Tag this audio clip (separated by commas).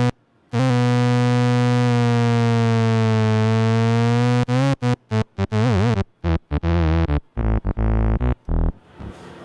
playing synthesizer